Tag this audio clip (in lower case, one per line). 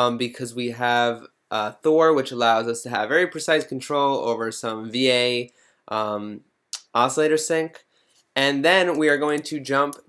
speech